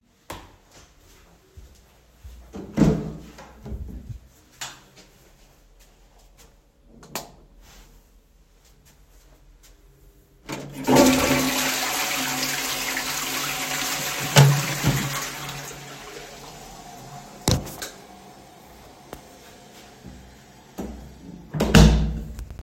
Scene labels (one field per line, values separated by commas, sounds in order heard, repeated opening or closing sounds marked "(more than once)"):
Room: lavatory, hallway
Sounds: footsteps, door (more than once), light switch, toilet flushing